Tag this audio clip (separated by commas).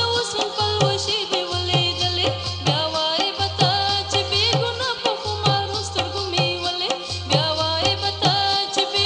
Music